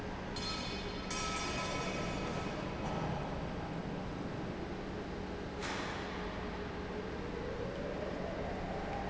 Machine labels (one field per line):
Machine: pump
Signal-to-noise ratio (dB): -6 dB